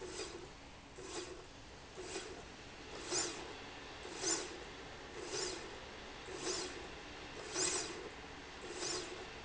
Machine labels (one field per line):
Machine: slide rail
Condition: normal